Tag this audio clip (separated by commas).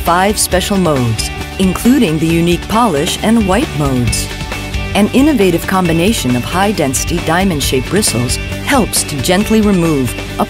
Music, Speech